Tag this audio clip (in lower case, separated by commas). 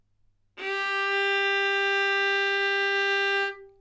bowed string instrument, musical instrument, music